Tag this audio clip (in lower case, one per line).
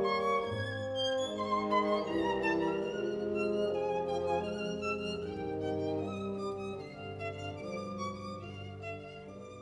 violin
musical instrument
music